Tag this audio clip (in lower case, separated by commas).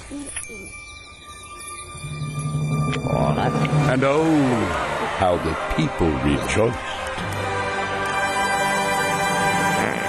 music, speech